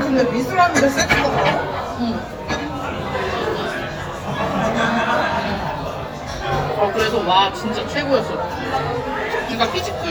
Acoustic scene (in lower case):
crowded indoor space